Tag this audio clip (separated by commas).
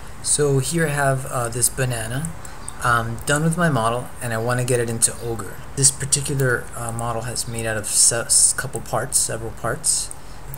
Speech